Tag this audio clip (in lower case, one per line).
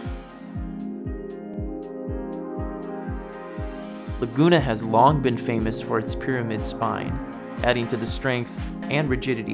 speech
music